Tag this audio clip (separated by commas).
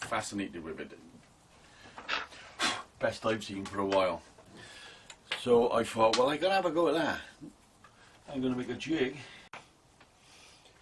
Speech